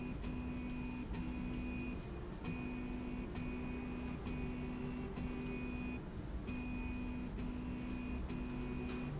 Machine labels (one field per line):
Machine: slide rail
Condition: normal